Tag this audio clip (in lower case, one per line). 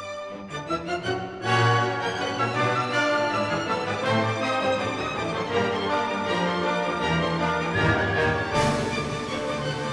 music